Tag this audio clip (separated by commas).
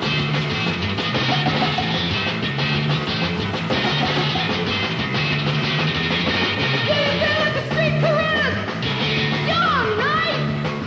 Music